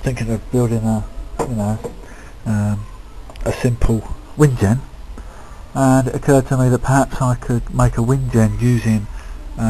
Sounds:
Speech

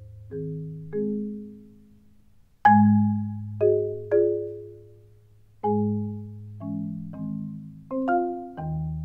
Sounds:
Percussion

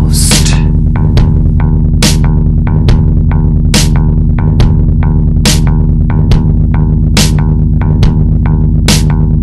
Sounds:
Music

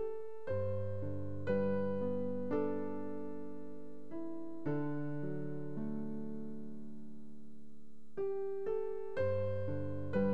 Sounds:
New-age music, Music

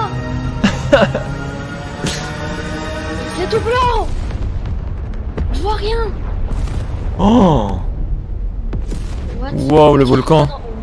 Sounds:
volcano explosion

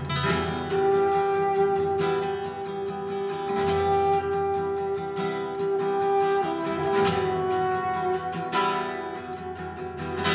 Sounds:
Musical instrument, Plucked string instrument, Music, Acoustic guitar, Guitar, Strum

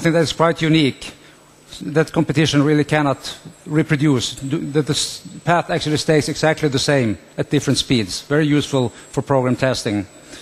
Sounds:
Speech

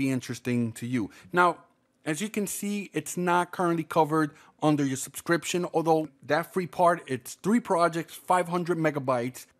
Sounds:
Speech

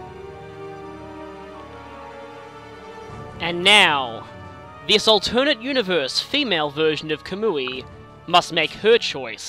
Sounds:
Music, Speech

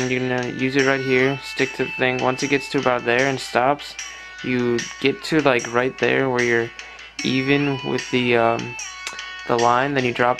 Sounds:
Music, Speech

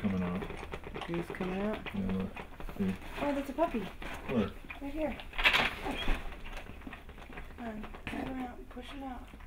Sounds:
Speech

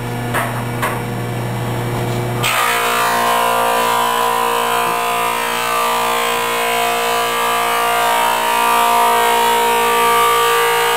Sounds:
planing timber

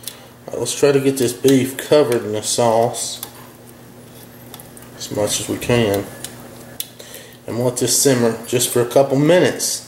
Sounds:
dishes, pots and pans, eating with cutlery, Cutlery

